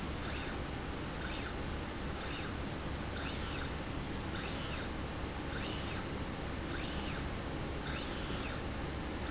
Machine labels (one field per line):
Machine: slide rail